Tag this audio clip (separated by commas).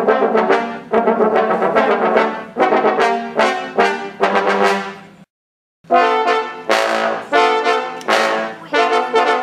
Trombone, Music, playing trombone, Brass instrument, Speech, Musical instrument